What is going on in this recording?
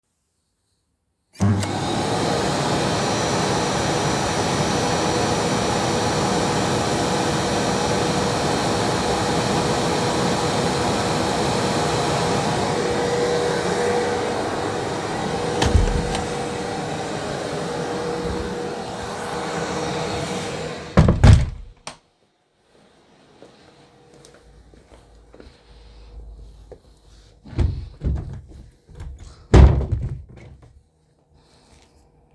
I turned on the vacuum cleaner in the living room. Then I started walking to the bedroom. In the other room I opened a wardrobe.